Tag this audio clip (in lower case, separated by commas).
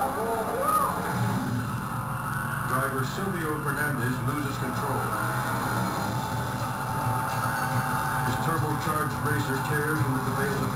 motor vehicle (road), speech, vehicle, car